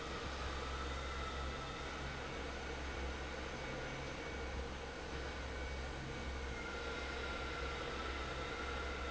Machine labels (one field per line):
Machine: fan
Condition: normal